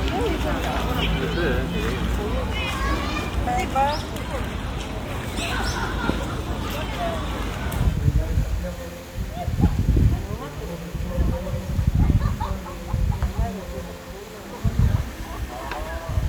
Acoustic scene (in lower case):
park